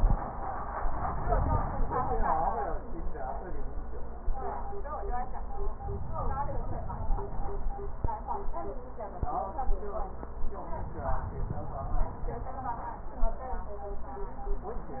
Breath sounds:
5.81-7.86 s: inhalation
10.64-12.80 s: inhalation

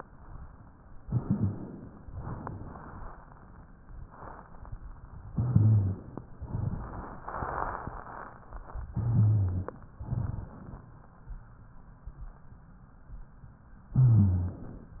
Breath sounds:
1.00-2.06 s: inhalation
2.17-3.64 s: exhalation
5.32-6.24 s: inhalation
5.34-5.99 s: rhonchi
6.39-7.25 s: exhalation
8.92-9.77 s: inhalation
8.92-9.68 s: rhonchi
10.02-10.88 s: exhalation
10.02-10.88 s: crackles

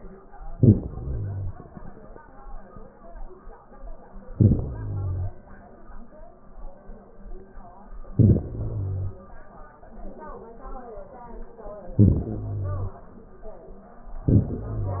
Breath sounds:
0.29-1.69 s: inhalation
4.18-5.46 s: inhalation
8.08-9.36 s: inhalation
11.84-13.01 s: inhalation
14.09-15.00 s: inhalation

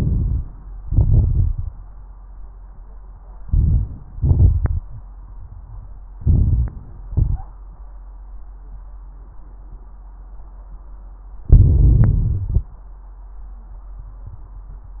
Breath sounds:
0.00-0.74 s: inhalation
0.00-0.74 s: crackles
0.80-1.72 s: exhalation
0.80-1.72 s: crackles
3.43-4.17 s: inhalation
3.43-4.17 s: crackles
4.17-4.91 s: exhalation
4.17-4.91 s: crackles
6.21-6.95 s: inhalation
6.21-6.95 s: crackles
7.02-7.55 s: exhalation
7.02-7.55 s: crackles
11.43-12.71 s: inhalation
11.43-12.71 s: crackles

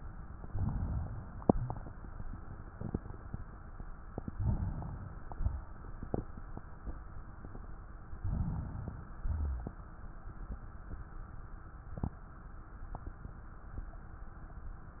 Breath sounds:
0.42-1.48 s: inhalation
1.51-2.73 s: exhalation
4.10-5.33 s: inhalation
5.34-6.88 s: exhalation
8.03-9.18 s: inhalation
9.20-10.38 s: exhalation

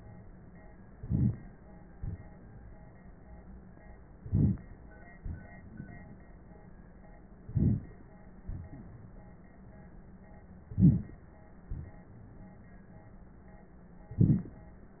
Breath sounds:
0.95-1.41 s: inhalation
1.99-2.90 s: exhalation
4.27-4.71 s: inhalation
5.24-6.22 s: exhalation
7.48-8.04 s: inhalation
8.50-9.35 s: exhalation
10.74-11.25 s: inhalation
11.73-12.75 s: exhalation
14.18-14.69 s: inhalation

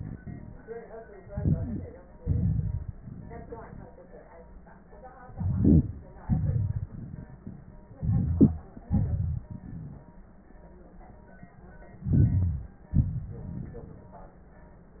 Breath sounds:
1.18-2.15 s: inhalation
1.53-1.89 s: wheeze
2.13-3.88 s: exhalation
5.27-6.21 s: inhalation
5.37-5.95 s: wheeze
6.20-7.84 s: exhalation
6.20-7.84 s: crackles
7.95-8.87 s: inhalation
7.95-8.87 s: crackles
8.87-10.30 s: exhalation
9.67-10.30 s: wheeze
11.96-12.92 s: inhalation
12.04-12.73 s: wheeze
12.93-14.43 s: exhalation
12.93-14.43 s: crackles

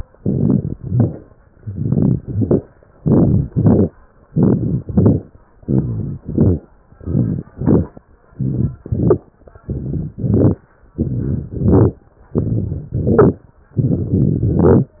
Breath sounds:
0.15-0.70 s: inhalation
0.15-0.70 s: crackles
0.76-1.22 s: exhalation
0.76-1.22 s: crackles
1.61-2.17 s: inhalation
1.61-2.17 s: crackles
2.20-2.64 s: exhalation
2.20-2.64 s: crackles
3.04-3.51 s: inhalation
3.04-3.51 s: crackles
3.53-3.87 s: exhalation
3.53-3.87 s: crackles
4.33-4.80 s: inhalation
4.33-4.80 s: crackles
4.90-5.24 s: exhalation
4.90-5.24 s: crackles
5.67-6.19 s: inhalation
5.67-6.19 s: crackles
6.24-6.58 s: exhalation
6.24-6.58 s: crackles
7.00-7.51 s: inhalation
7.00-7.51 s: crackles
7.55-7.89 s: exhalation
7.55-7.89 s: crackles
8.39-8.77 s: inhalation
8.39-8.77 s: crackles
8.86-9.24 s: exhalation
8.86-9.24 s: crackles
9.68-10.11 s: inhalation
9.68-10.11 s: crackles
10.23-10.61 s: exhalation
10.23-10.61 s: crackles
10.99-11.50 s: inhalation
10.99-11.50 s: crackles
11.59-11.99 s: exhalation
11.59-11.99 s: crackles
12.37-12.92 s: inhalation
12.37-12.92 s: crackles
13.00-13.40 s: exhalation
13.00-13.40 s: crackles
13.79-14.46 s: inhalation
13.79-14.46 s: crackles
14.55-14.95 s: exhalation
14.55-14.95 s: crackles

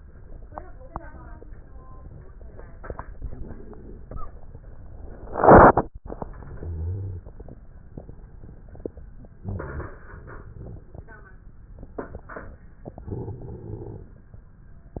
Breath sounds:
6.26-7.60 s: inhalation
6.57-7.22 s: wheeze
9.39-10.97 s: inhalation
9.39-10.97 s: crackles
12.80-14.12 s: inhalation

